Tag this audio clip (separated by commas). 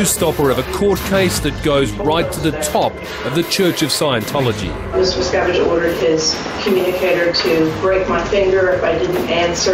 Speech